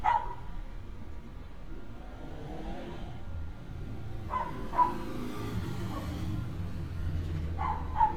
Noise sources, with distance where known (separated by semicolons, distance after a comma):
engine of unclear size, near; dog barking or whining, near